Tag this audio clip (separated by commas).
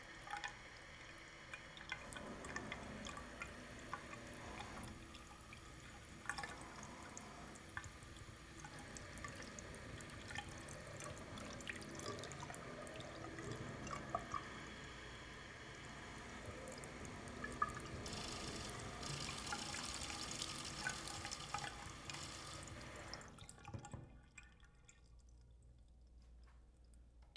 Domestic sounds, faucet, Sink (filling or washing)